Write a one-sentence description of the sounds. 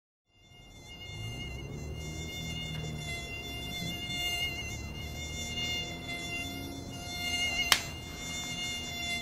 Buzzing insect followed by smacking